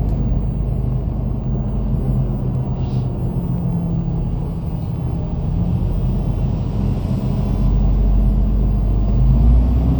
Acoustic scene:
bus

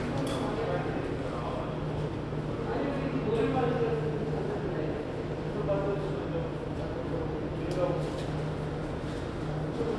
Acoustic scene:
subway station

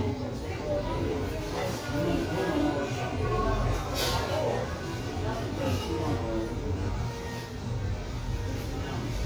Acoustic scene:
crowded indoor space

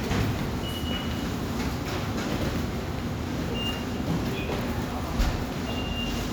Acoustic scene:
subway station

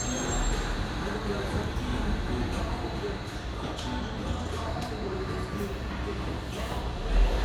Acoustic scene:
cafe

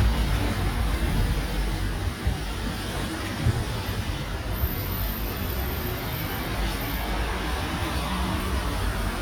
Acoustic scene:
residential area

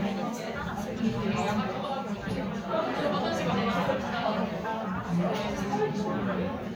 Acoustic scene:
crowded indoor space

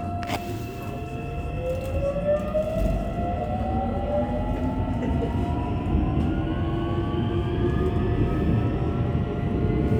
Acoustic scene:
subway train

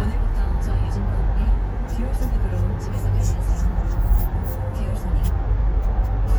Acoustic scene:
car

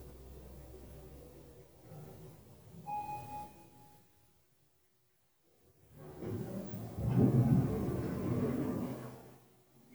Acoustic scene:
elevator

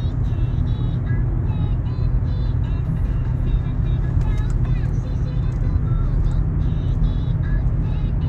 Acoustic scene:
car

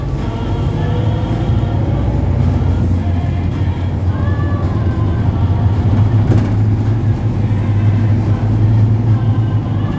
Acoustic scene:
bus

